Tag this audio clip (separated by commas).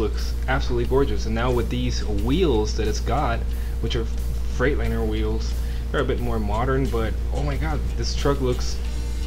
Music, Speech